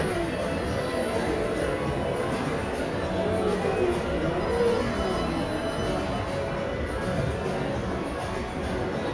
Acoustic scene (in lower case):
crowded indoor space